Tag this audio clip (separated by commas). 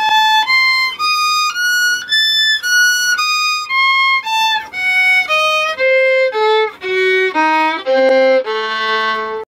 fiddle, Music, Musical instrument